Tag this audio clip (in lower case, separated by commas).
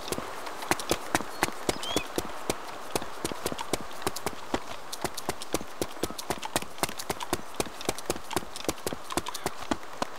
animal